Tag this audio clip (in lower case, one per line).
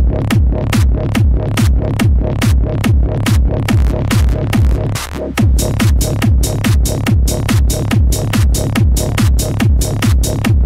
music
electronic music